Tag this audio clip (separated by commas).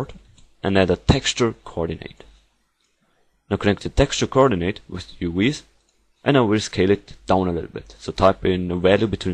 Speech